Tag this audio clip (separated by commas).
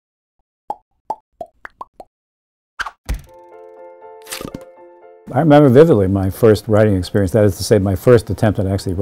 Music, Speech, Plop